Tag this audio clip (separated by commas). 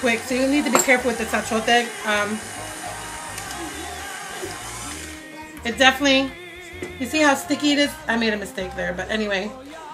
inside a small room, Music, Speech